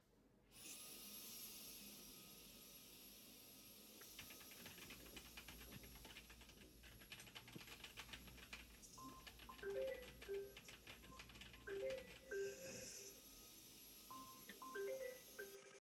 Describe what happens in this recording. I was writing some text on my keyboard, while someone was cleaning another room in the apartment. Suddenly, my phone rang. I stopped typing and looked on my phone.